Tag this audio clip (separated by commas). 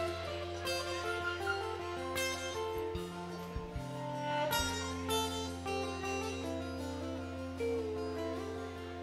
Speech, Music